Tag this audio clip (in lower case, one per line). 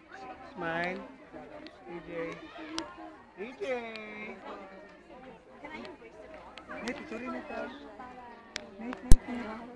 speech